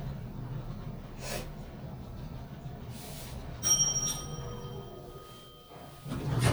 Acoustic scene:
elevator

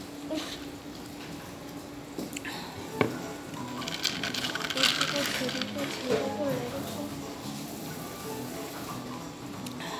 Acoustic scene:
cafe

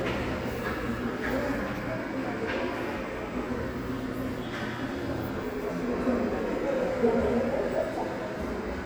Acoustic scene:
subway station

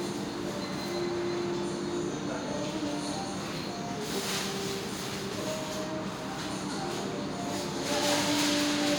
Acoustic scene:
restaurant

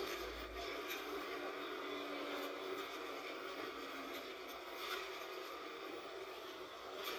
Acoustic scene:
bus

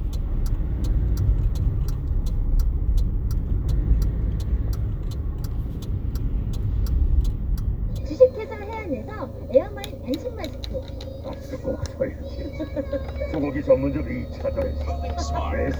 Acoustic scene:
car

